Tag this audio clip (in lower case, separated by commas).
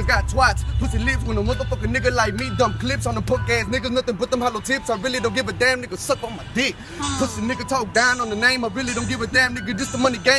music